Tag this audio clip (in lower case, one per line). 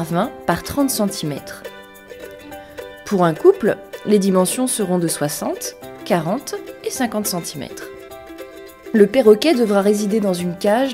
speech
music